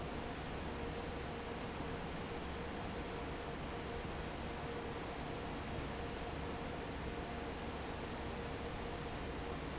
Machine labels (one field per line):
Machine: fan